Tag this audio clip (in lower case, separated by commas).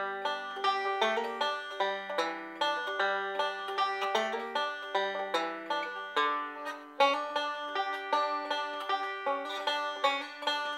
playing banjo